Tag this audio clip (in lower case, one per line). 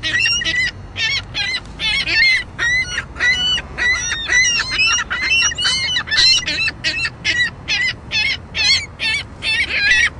bird squawking